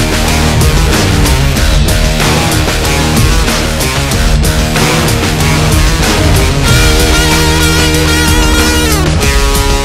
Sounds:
Music, Plucked string instrument, Guitar, Musical instrument

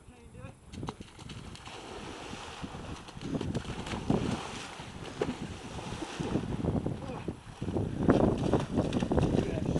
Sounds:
Run, Speech

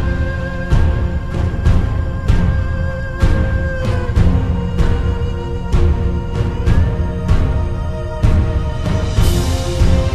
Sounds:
Music, Theme music

